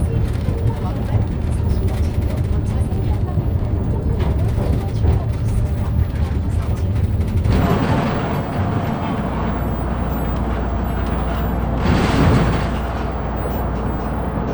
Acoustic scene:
bus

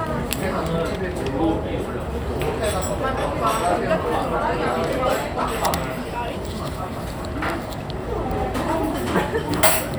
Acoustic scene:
restaurant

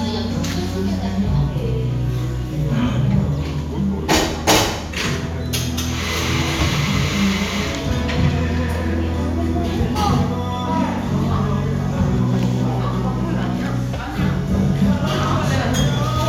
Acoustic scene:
cafe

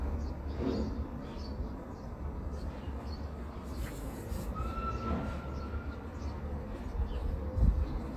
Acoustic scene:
residential area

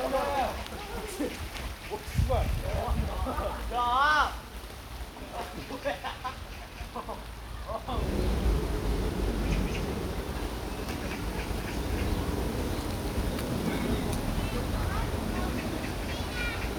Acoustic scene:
park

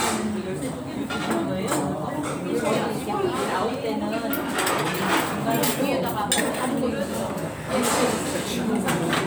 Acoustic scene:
restaurant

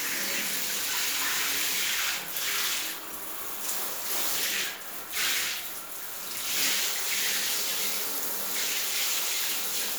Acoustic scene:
restroom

